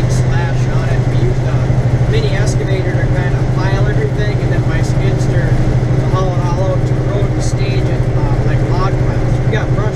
Male talking with sound of large engine in background